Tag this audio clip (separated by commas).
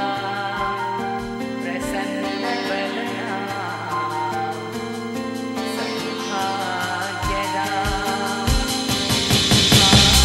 Music